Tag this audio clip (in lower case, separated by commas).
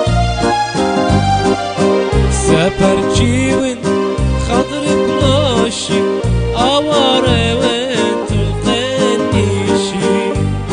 background music, soundtrack music, music